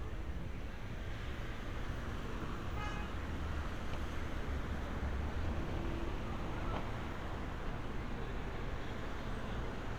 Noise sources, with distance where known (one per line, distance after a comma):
car horn